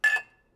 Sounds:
Glass, clink, home sounds, dishes, pots and pans

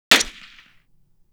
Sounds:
gunfire, Explosion

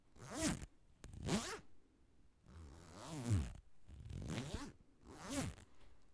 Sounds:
home sounds, Zipper (clothing)

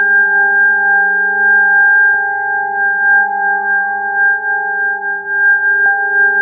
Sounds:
Keyboard (musical), Musical instrument, Organ, Music

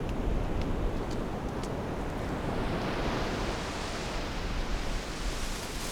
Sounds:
Water, Ocean, Waves

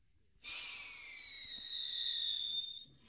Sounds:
Explosion, Fireworks

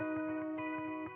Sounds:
Guitar, Plucked string instrument, Music, Musical instrument, Electric guitar

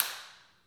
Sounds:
Clapping, Hands

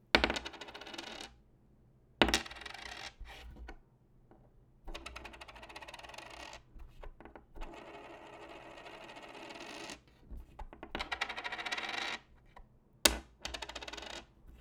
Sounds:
home sounds, Coin (dropping)

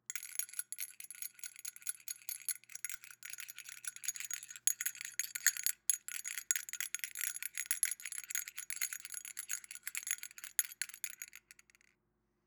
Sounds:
Bell

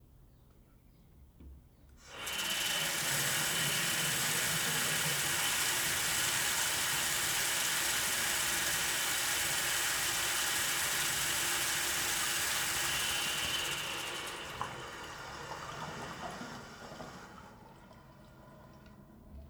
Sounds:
Sink (filling or washing), Domestic sounds, faucet

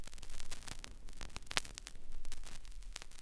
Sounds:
Crackle

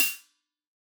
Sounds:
Cymbal, Percussion, Music, Musical instrument, Hi-hat

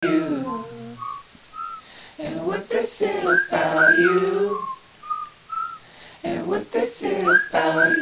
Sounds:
Human voice

